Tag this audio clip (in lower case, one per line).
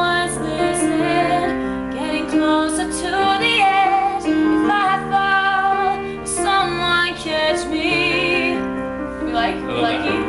music
speech